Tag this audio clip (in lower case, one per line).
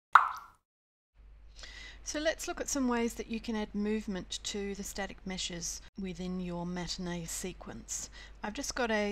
speech
plop